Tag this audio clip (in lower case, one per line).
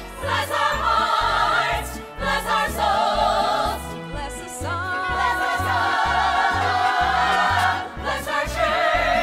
music
choir
female singing